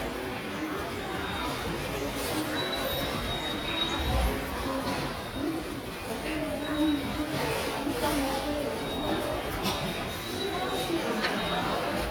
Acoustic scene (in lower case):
subway station